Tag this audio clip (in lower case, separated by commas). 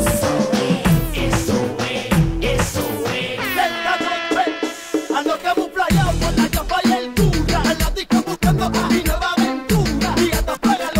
singing